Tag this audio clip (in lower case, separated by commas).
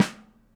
drum, musical instrument, percussion, snare drum, music